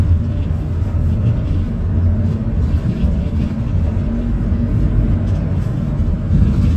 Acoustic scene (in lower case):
bus